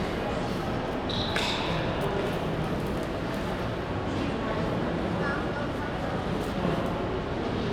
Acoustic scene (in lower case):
crowded indoor space